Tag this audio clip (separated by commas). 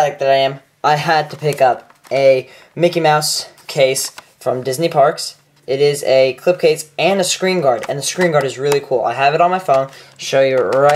Speech